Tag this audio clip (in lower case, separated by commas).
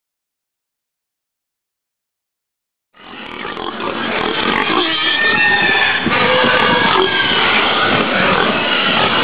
animal, pig